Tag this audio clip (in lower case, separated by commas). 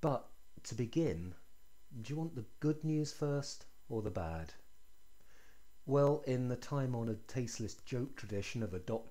speech